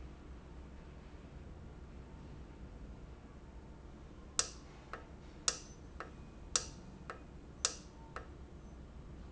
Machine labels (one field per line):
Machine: valve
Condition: normal